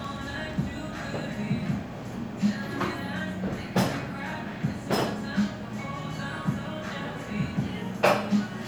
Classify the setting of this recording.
cafe